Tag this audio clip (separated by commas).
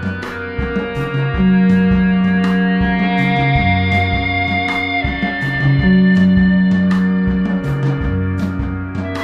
Music, Plucked string instrument, Musical instrument, Acoustic guitar, Ambient music, Guitar